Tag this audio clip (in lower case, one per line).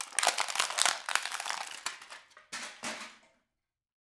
crushing